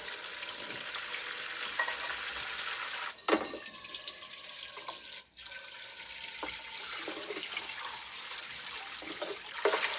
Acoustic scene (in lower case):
kitchen